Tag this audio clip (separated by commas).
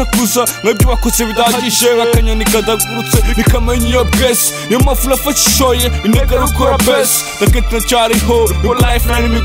Music